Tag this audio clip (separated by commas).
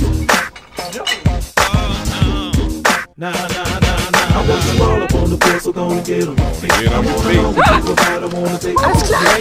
Speech, Music